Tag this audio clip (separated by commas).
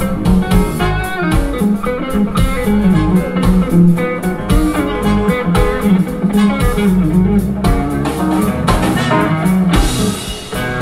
Guitar, Electric guitar, Plucked string instrument, Musical instrument, Music